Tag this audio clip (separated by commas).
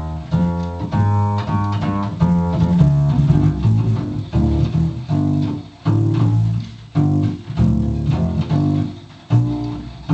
playing double bass